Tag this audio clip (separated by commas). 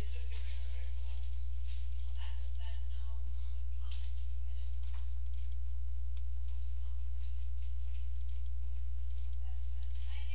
Speech